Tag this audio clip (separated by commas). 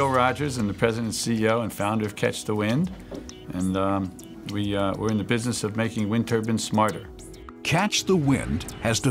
Speech, Music